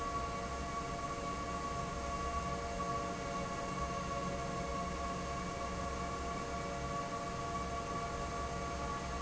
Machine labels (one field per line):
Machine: fan